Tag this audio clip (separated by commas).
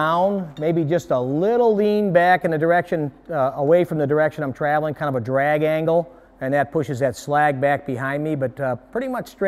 Speech